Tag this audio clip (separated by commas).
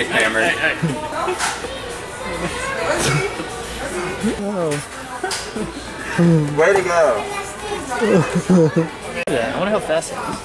Speech